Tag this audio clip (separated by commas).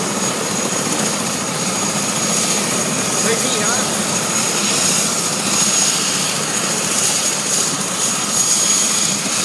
Helicopter, Vehicle, Speech